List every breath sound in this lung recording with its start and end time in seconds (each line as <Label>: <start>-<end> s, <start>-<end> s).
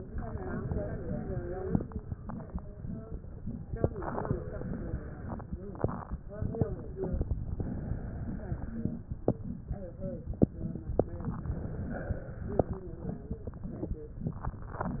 Inhalation: 0.11-1.74 s, 3.74-5.27 s, 7.59-9.09 s, 11.25-12.75 s